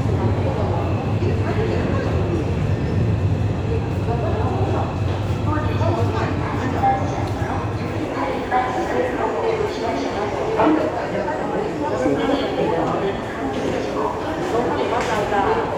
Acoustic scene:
subway station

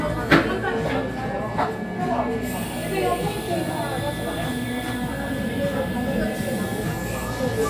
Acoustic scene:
cafe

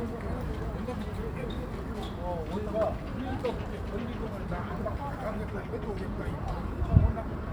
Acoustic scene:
park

